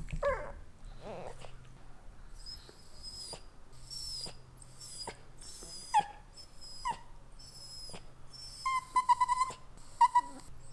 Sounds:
dog whimpering

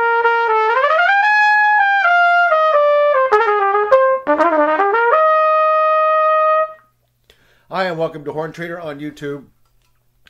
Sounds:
Trumpet, Music, Speech

